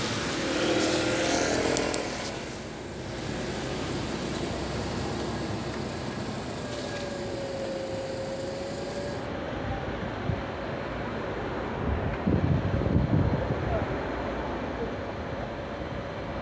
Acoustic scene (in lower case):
street